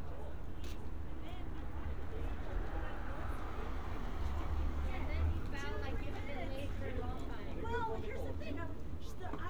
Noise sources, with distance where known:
person or small group talking, near

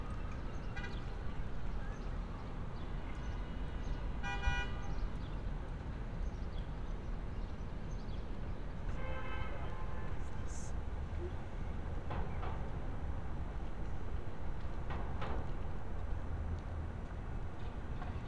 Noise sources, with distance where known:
car horn

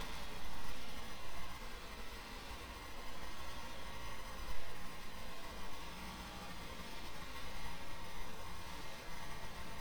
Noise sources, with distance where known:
background noise

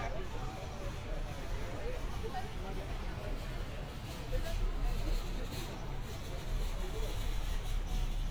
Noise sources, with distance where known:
person or small group talking, near

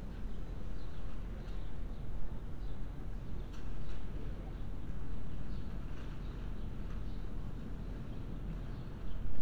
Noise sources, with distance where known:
background noise

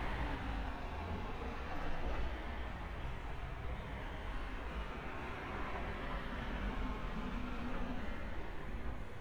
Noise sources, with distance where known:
background noise

